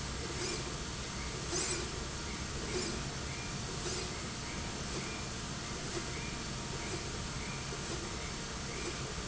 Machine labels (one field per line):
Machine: slide rail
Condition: normal